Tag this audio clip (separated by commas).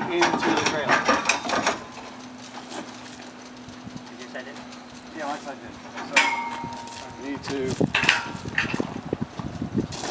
Speech